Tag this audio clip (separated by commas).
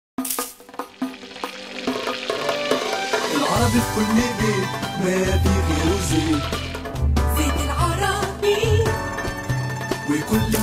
Jingle (music)